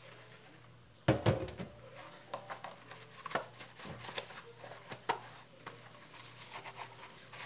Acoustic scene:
kitchen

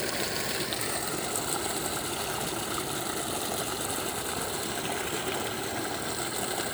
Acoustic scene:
park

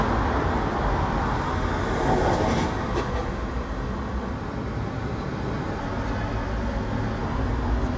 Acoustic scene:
street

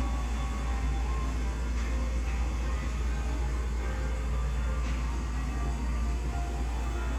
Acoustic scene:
cafe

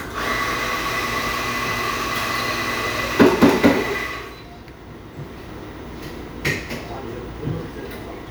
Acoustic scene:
cafe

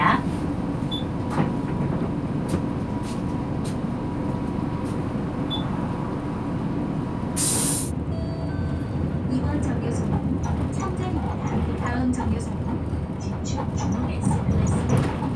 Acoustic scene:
bus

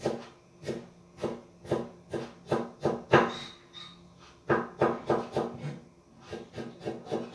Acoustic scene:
kitchen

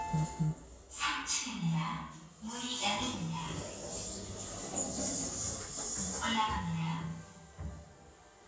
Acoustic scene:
elevator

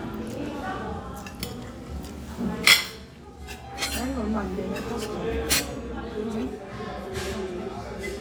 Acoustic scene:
restaurant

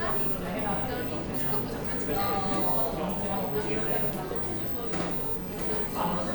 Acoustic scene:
cafe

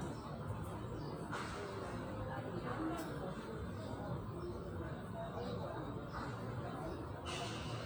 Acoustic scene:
park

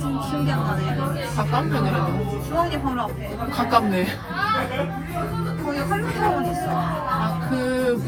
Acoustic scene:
crowded indoor space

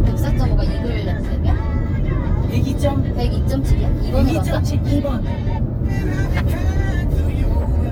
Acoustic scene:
car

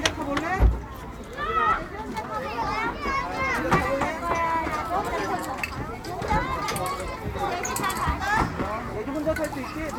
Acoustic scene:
park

